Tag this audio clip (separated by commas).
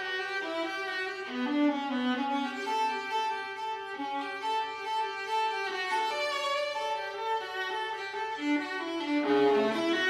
Music